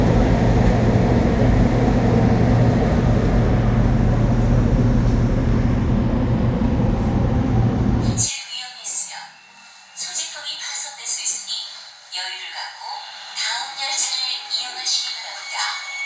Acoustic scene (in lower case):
subway train